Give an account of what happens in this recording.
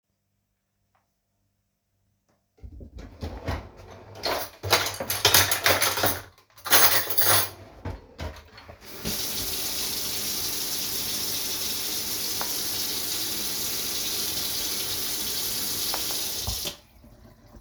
I placed the phone on a stable surface in the kitchen. I opened a drawer, handled cutlery and dishes, and briefly turned on running water. Multiple target sounds occur sequentially.